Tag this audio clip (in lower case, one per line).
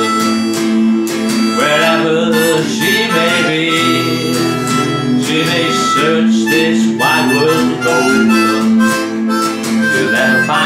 music
guitar
singing
banjo